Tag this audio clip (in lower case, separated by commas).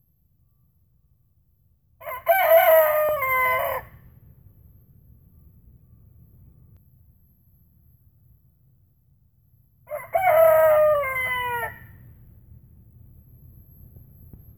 fowl, livestock, rooster, animal